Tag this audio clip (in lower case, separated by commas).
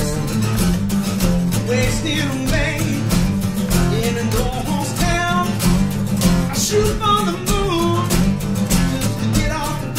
music